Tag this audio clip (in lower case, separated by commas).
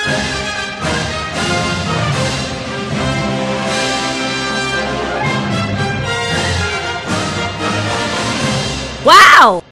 music, speech